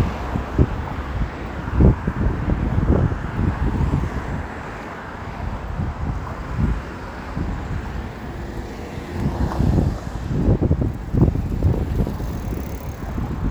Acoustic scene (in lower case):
street